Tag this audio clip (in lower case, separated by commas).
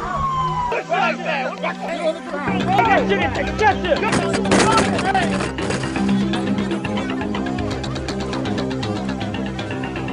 music, speech